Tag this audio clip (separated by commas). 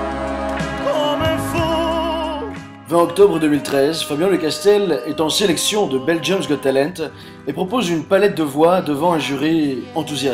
Music, Speech